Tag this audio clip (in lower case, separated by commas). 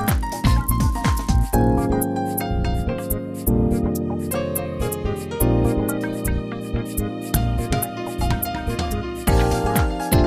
music